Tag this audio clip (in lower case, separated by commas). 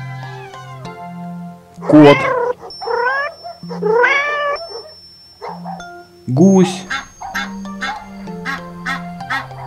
speech, music